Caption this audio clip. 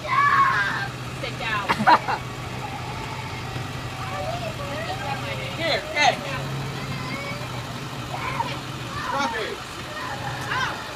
People are talking and a vehicle engine is idling